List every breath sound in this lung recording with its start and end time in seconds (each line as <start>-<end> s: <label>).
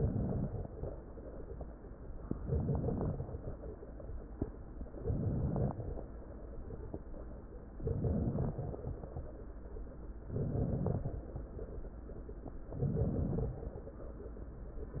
0.00-0.78 s: inhalation
0.00-0.78 s: crackles
2.35-3.25 s: inhalation
2.35-3.25 s: crackles
4.99-5.88 s: inhalation
4.99-5.88 s: crackles
7.80-8.82 s: inhalation
7.80-8.82 s: crackles
10.28-11.21 s: inhalation
10.28-11.21 s: crackles
12.75-13.68 s: inhalation
12.75-13.68 s: crackles